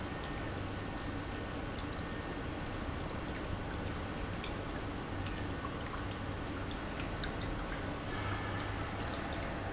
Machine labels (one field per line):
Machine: pump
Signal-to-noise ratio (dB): -6 dB